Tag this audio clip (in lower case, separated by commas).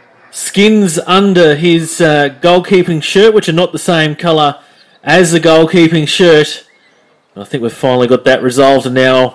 animal, speech